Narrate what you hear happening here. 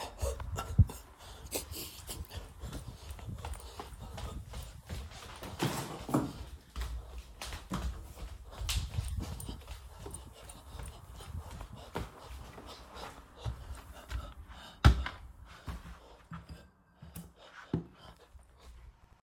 I was running here and there in my apartment. We can hear the heavy breathing and the sound of my footsteps on the floor.